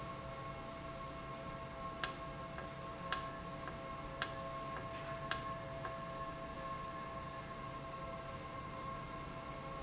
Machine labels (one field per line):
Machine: valve